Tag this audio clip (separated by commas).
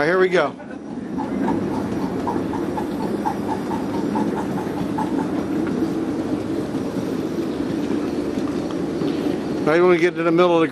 Speech